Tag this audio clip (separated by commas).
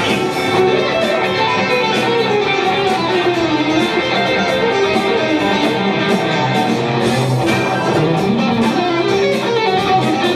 Music, Musical instrument, Strum, Plucked string instrument, Electric guitar, Guitar